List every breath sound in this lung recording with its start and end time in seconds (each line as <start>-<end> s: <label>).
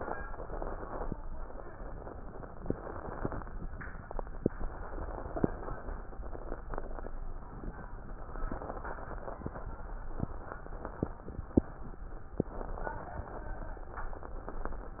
0.00-1.11 s: inhalation
2.54-3.41 s: inhalation
4.50-6.01 s: inhalation
8.30-9.61 s: inhalation
12.48-13.99 s: inhalation